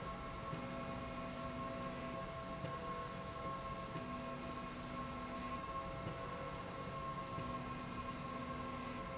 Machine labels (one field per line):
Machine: slide rail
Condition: normal